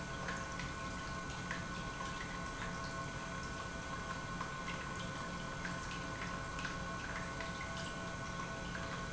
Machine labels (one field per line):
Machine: pump